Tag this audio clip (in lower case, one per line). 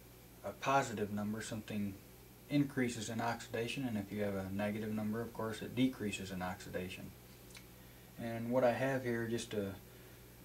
speech